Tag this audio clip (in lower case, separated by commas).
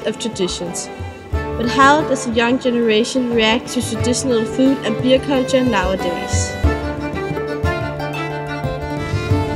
speech, music